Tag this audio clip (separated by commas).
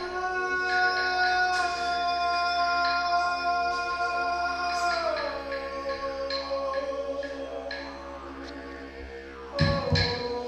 woodwind instrument